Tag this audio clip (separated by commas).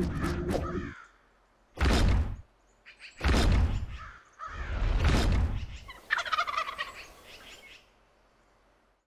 Turkey, Gobble, Fowl